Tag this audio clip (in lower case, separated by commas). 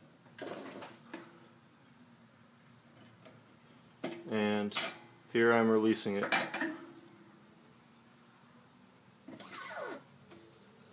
speech